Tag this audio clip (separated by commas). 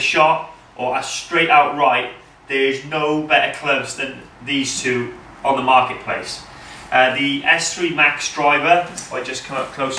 Speech